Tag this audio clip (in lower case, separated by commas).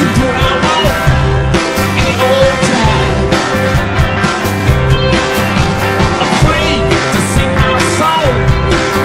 strum, electric guitar, guitar, plucked string instrument, musical instrument, music